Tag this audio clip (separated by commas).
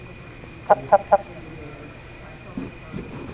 livestock, Fowl, Animal